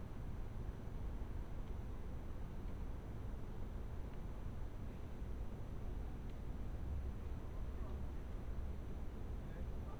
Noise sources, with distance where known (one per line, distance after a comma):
engine of unclear size, far